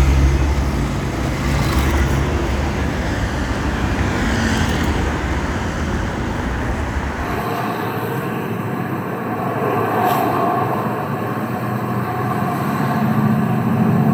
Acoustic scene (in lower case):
street